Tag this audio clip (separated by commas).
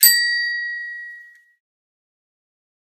Bicycle, Vehicle, Bicycle bell, Alarm, Bell